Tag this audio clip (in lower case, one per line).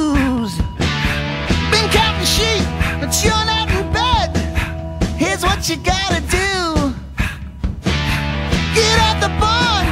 music